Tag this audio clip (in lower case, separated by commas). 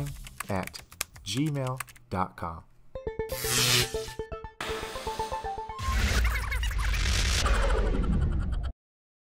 speech, music